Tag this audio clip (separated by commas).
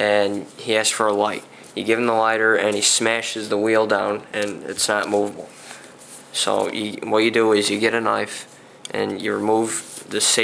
strike lighter